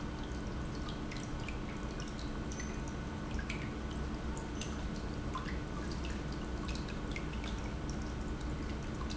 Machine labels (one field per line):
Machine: pump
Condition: normal